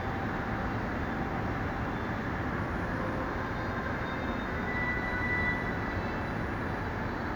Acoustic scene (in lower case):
subway station